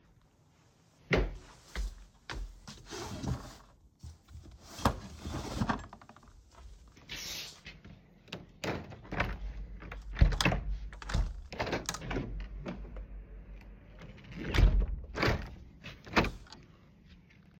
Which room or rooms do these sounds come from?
bedroom